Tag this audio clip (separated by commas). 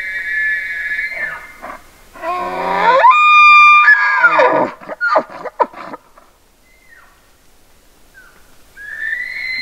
Animal, outside, rural or natural